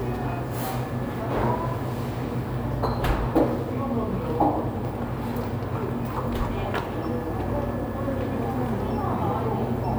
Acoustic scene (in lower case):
cafe